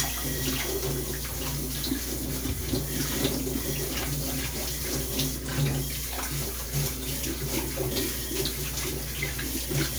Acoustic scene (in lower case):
kitchen